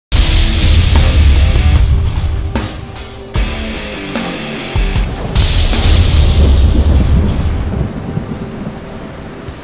Music is playing and a whoosh goes off